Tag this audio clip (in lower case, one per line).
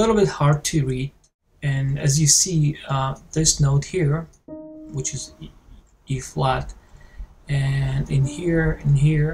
speech